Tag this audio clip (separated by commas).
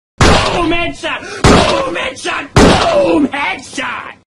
Sound effect